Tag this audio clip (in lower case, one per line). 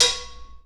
domestic sounds
dishes, pots and pans